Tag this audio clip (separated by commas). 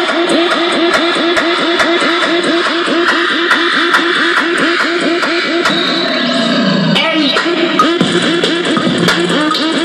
Music, Radio